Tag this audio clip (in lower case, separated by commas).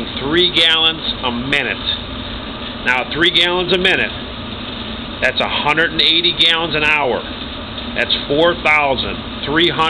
speech